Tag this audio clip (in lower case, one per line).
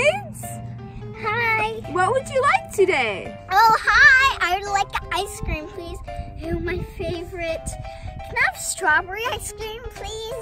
ice cream van